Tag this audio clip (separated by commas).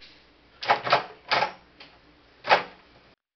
Domestic sounds, Door